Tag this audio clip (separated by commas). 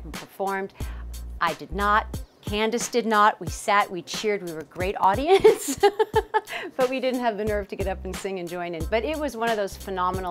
Music, Speech